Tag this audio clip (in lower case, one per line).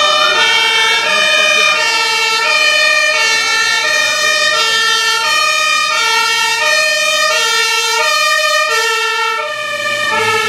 emergency vehicle
siren
fire truck (siren)